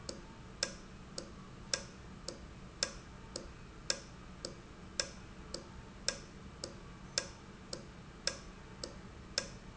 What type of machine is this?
valve